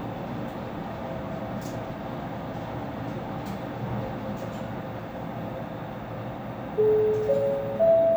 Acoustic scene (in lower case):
elevator